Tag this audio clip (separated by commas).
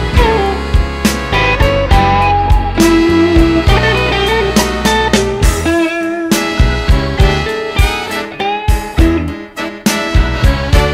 Steel guitar, Music